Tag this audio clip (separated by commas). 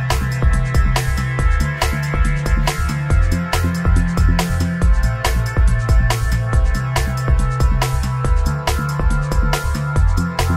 Music